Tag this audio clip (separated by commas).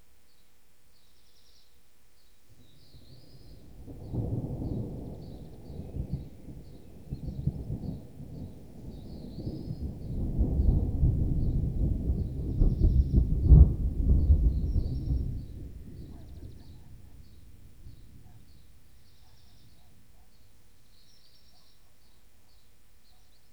Thunderstorm, Thunder